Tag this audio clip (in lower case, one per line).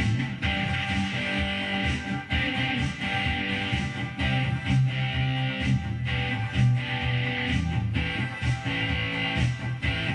electric guitar
guitar
strum
music
plucked string instrument
musical instrument